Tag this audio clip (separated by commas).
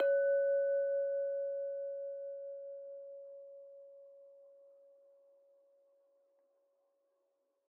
Glass, clink